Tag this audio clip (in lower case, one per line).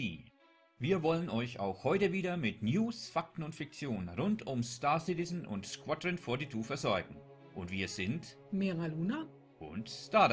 speech